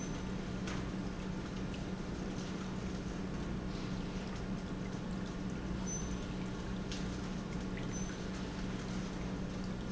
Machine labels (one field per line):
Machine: pump